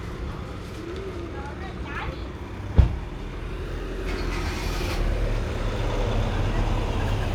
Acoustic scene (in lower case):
residential area